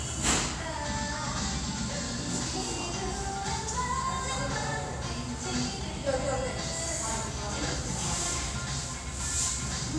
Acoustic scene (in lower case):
restaurant